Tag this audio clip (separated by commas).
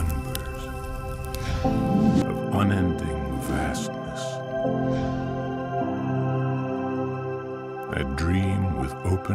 Speech, New-age music, Music